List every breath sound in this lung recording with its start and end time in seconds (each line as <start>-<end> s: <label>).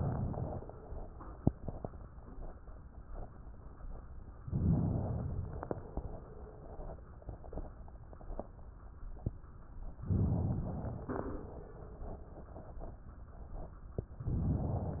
0.00-0.86 s: inhalation
4.48-5.71 s: inhalation
10.04-11.06 s: inhalation
14.19-15.00 s: inhalation